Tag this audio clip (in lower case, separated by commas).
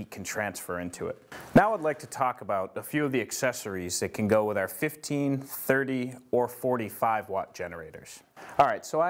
speech